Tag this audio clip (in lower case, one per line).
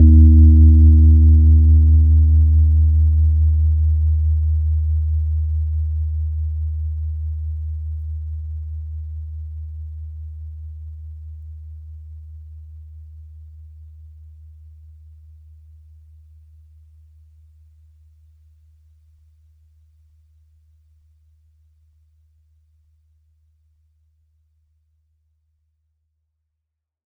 keyboard (musical)
piano
music
musical instrument